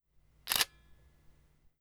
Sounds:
camera
mechanisms

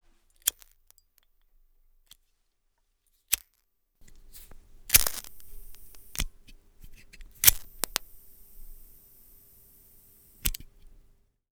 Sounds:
fire

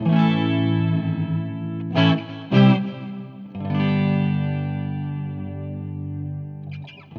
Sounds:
guitar
plucked string instrument
music
musical instrument

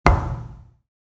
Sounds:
thump

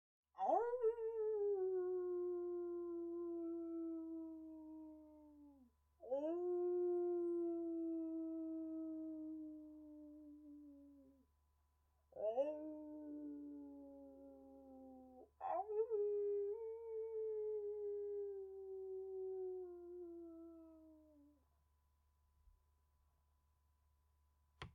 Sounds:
dog
pets
animal

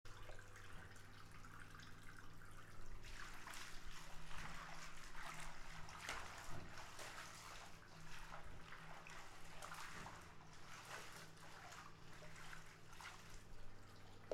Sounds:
domestic sounds
bathtub (filling or washing)

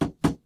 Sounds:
tap

